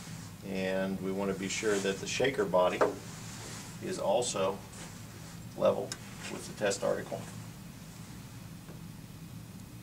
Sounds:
Speech

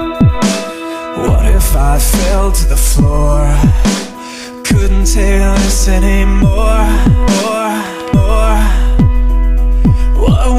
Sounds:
Music, Electronic music, Dubstep

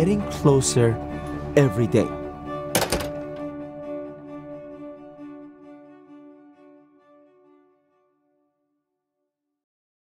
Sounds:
Speech, inside a small room, Music

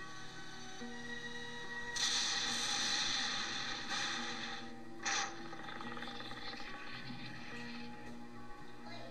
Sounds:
Speech, Music

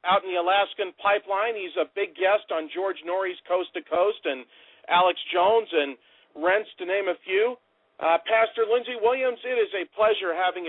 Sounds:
Speech

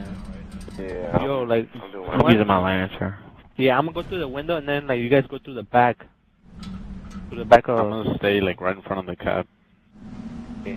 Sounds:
Speech

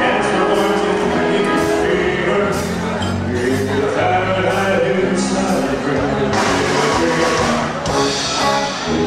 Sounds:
Music, Singing

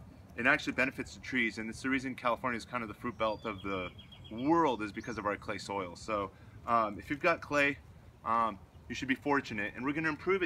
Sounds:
Speech

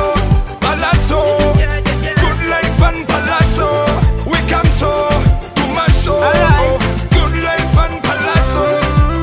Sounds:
Music

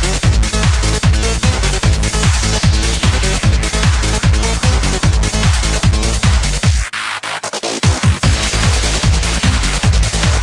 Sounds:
Trance music

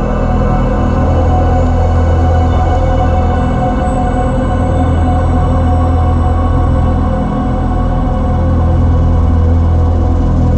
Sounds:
Electronic music, Music, Ambient music

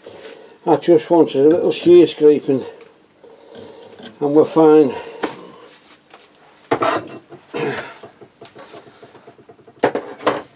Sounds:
Speech

